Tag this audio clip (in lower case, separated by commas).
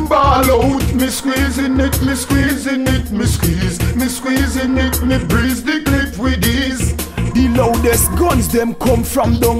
music